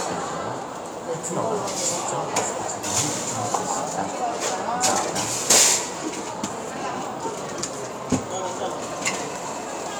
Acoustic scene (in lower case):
cafe